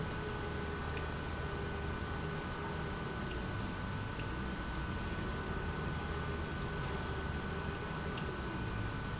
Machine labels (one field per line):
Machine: pump